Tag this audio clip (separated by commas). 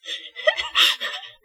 Human voice, Laughter